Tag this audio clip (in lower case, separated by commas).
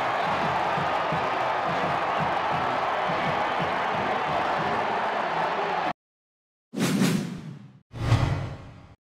speech, music